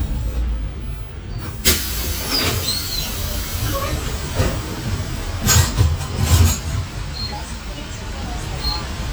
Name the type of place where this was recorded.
bus